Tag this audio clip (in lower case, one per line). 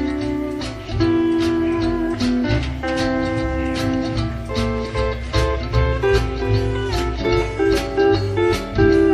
guitar
music
musical instrument
strum
plucked string instrument